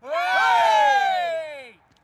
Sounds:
Cheering, Human group actions

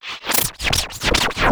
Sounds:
Music, Scratching (performance technique), Musical instrument

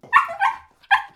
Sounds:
pets, Dog, Animal

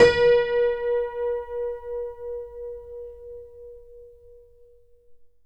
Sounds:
Music, Keyboard (musical), Musical instrument, Piano

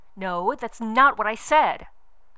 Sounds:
Speech, Human voice, woman speaking

